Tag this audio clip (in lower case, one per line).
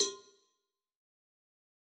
cowbell
bell